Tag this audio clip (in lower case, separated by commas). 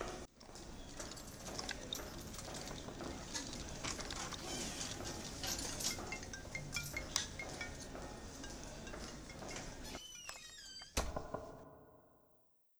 domestic sounds, knock, door